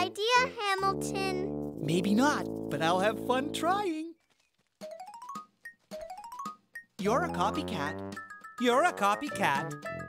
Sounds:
music, speech

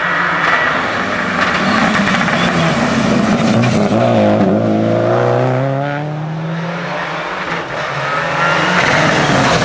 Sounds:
motor vehicle (road), car, accelerating, vehicle, race car

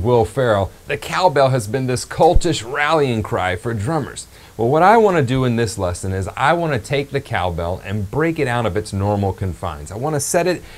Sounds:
speech

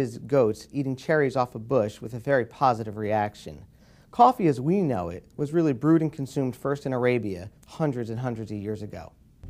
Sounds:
music, speech

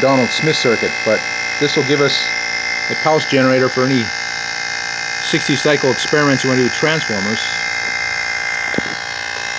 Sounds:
speech

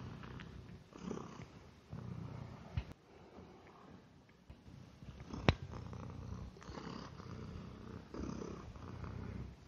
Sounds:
cat purring

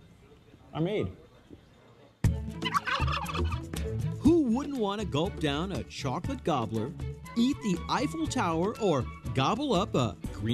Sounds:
fowl, gobble, turkey

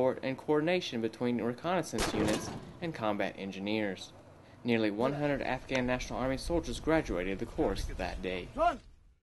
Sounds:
gunfire, artillery fire

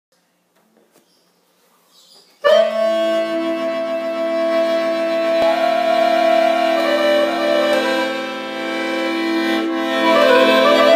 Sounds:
accordion

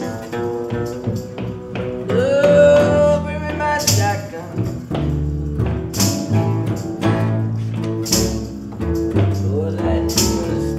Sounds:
music

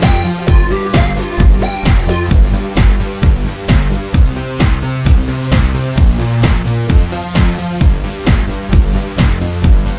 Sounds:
theme music, music

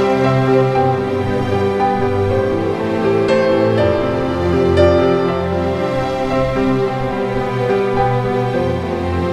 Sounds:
music

